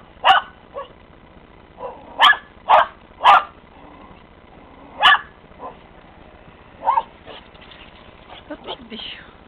A dog barks and yaps